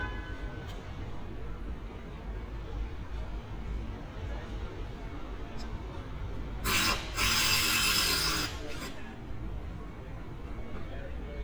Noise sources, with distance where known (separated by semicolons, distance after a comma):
unidentified impact machinery, near